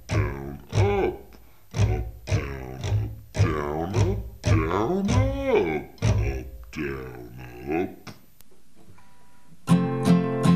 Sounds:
music, plucked string instrument, musical instrument, speech, guitar, acoustic guitar

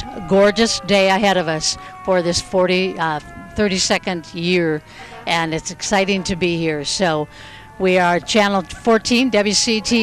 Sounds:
fire truck (siren), speech

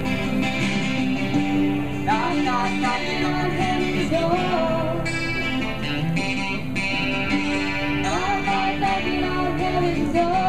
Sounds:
music

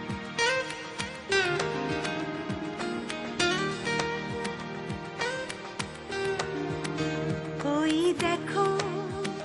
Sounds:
happy music, music

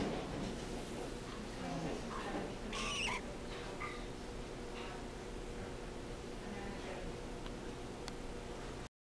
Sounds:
sound effect

